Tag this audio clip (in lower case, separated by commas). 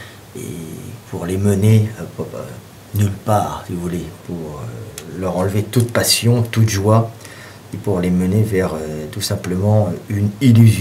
speech